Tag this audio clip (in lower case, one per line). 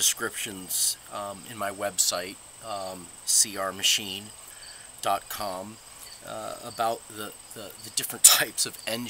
speech